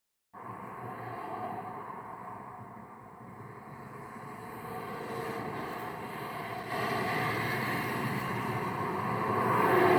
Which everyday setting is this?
street